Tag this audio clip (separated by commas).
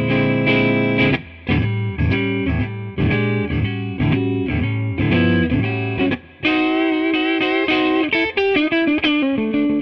Music